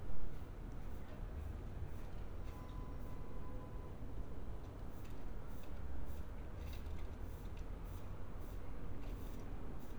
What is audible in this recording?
background noise